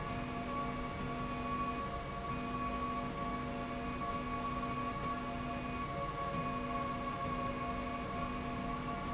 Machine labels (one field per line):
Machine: slide rail